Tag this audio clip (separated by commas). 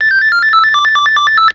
Telephone, Ringtone, Alarm